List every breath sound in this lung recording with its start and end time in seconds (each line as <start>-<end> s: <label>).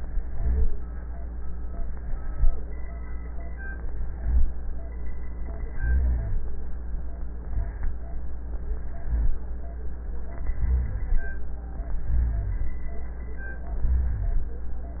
0.02-0.67 s: inhalation
0.25-0.67 s: rhonchi
1.73-2.47 s: inhalation
3.80-4.53 s: inhalation
4.10-4.53 s: rhonchi
5.67-6.43 s: inhalation
5.67-6.43 s: rhonchi
7.46-8.03 s: inhalation
7.46-8.03 s: rhonchi
8.82-9.39 s: inhalation
8.99-9.39 s: rhonchi
10.59-11.21 s: inhalation
10.59-11.21 s: rhonchi
12.09-12.71 s: inhalation
12.09-12.71 s: rhonchi
13.83-14.55 s: inhalation
13.83-14.55 s: rhonchi